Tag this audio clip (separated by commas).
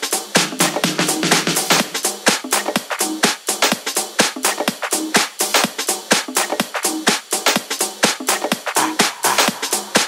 Music